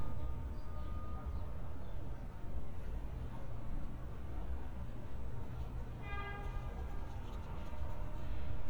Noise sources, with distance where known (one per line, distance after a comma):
car horn, far